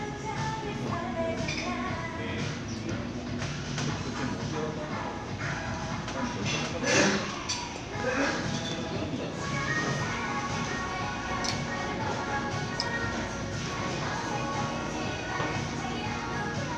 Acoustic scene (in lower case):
crowded indoor space